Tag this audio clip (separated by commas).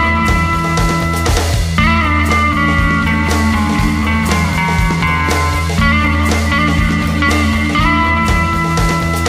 Music